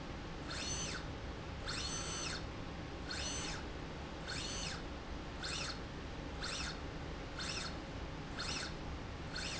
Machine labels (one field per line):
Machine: slide rail